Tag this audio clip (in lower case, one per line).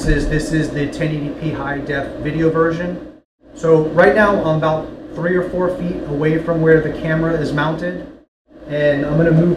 speech